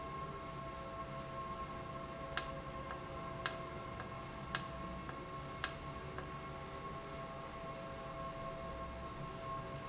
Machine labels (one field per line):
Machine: valve